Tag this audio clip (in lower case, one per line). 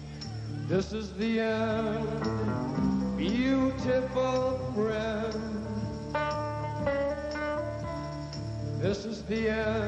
music